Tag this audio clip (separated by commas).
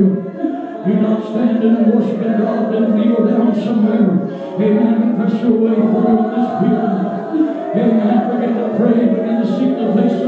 Speech